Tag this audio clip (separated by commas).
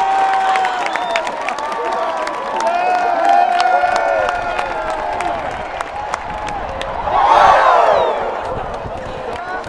Crowd, Cheering